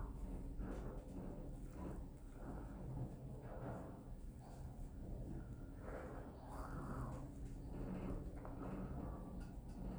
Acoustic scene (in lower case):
elevator